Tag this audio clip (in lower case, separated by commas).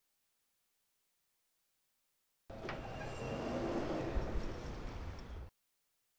home sounds, door, sliding door